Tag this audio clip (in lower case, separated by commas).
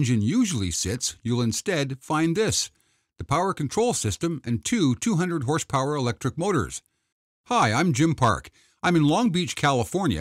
speech